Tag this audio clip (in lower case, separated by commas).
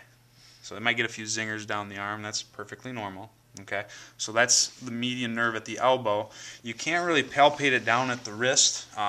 speech